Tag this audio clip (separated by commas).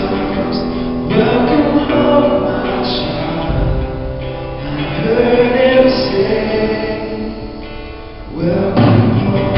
Music, Vocal music, Singing